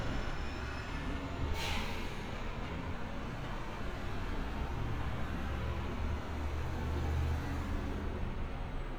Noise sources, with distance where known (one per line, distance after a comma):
large-sounding engine